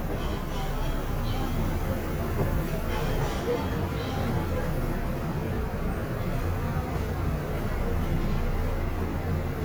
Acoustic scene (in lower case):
subway train